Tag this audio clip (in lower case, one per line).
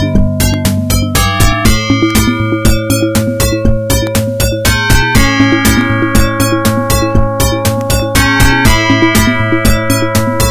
music